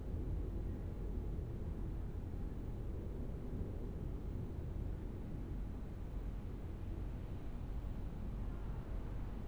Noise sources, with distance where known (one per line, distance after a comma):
background noise